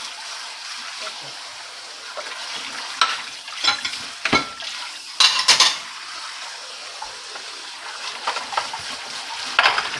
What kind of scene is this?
kitchen